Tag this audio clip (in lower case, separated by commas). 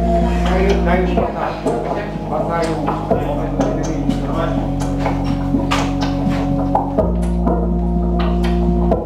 speech, electronic music, music